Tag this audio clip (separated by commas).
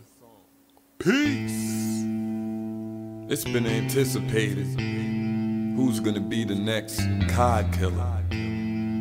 Speech, Music